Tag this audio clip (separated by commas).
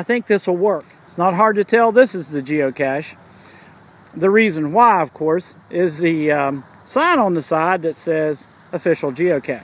outside, rural or natural, Speech